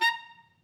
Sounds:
musical instrument, wind instrument, music

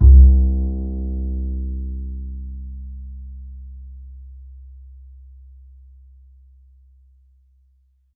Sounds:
bowed string instrument, music, musical instrument

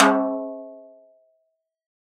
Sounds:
snare drum, percussion, music, musical instrument, drum

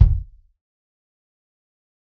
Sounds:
musical instrument, bass drum, percussion, music, drum

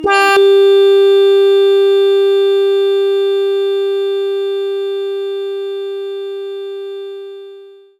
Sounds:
organ, musical instrument, keyboard (musical), music

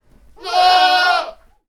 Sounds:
animal, livestock

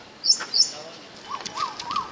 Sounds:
animal, bird call, wild animals, bird

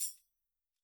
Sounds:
tambourine, music, musical instrument, percussion

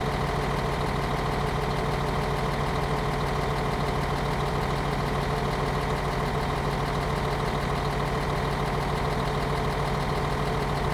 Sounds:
vehicle, bus, motor vehicle (road)

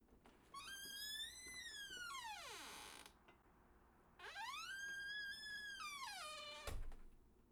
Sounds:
squeak

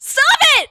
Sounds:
human voice, yell, shout

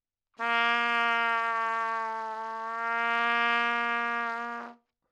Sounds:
music, trumpet, musical instrument, brass instrument

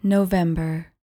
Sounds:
human voice

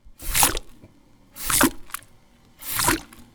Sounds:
splash, liquid

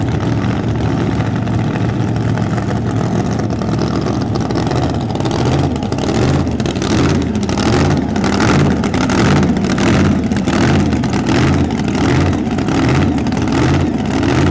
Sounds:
vroom, race car, motor vehicle (road), engine, idling, car, vehicle

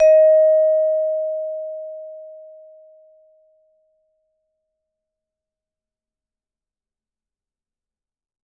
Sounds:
music, mallet percussion, percussion, musical instrument

